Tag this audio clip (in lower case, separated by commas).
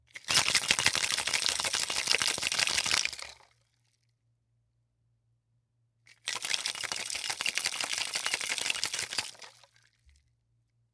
rattle (instrument), musical instrument, music, percussion